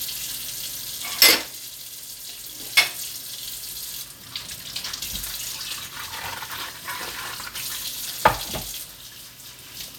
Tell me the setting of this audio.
kitchen